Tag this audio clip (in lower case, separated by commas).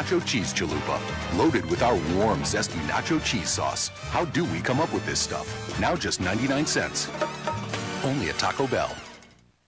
music, speech